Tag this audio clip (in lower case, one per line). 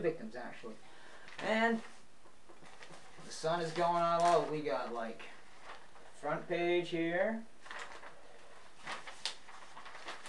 speech